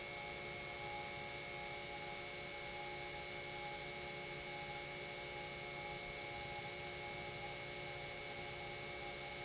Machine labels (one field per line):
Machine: pump